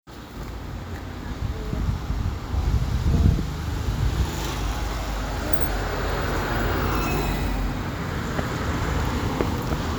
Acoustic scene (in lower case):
street